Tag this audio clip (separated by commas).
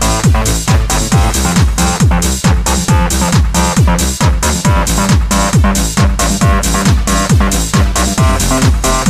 Techno, Video game music, Music